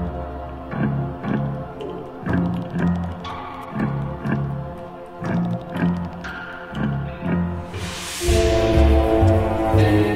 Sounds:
Music

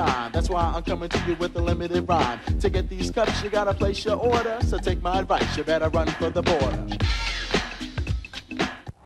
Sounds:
Music

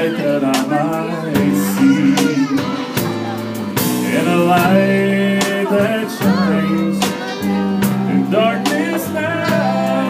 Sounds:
Music

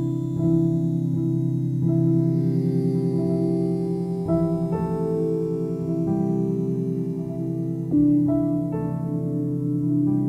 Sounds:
Music

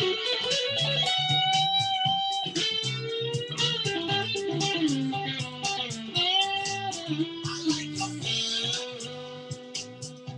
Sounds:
Plucked string instrument, Guitar, Musical instrument, Electric guitar, Music

